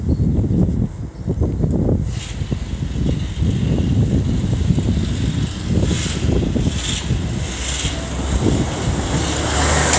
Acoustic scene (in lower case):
street